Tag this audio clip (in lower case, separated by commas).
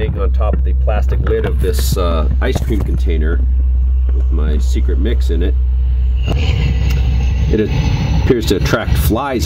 speech